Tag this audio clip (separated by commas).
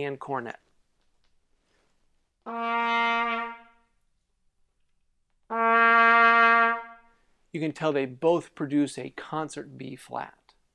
playing cornet